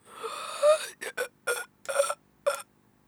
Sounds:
Respiratory sounds, Breathing

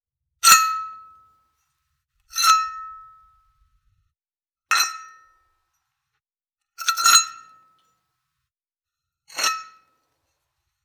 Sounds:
Chink, Glass

